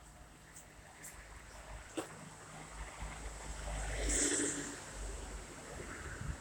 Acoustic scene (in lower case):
street